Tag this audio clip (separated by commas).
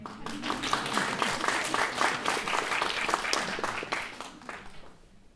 Applause, Human group actions